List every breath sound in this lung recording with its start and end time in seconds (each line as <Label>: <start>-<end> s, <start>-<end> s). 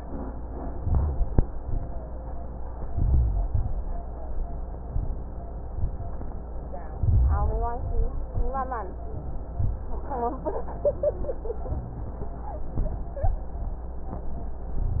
Inhalation: 0.72-1.39 s, 2.81-3.47 s, 6.96-7.71 s
Exhalation: 3.49-4.04 s, 7.74-8.48 s
Rhonchi: 0.80-1.35 s, 2.77-3.47 s, 6.96-7.71 s